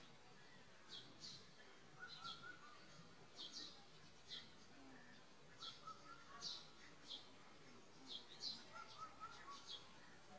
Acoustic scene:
park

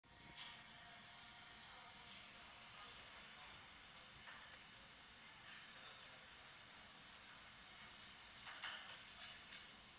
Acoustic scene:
cafe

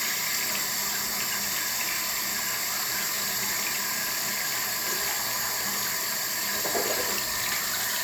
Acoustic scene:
restroom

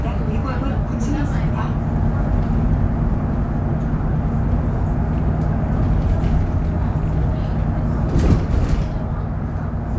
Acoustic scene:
bus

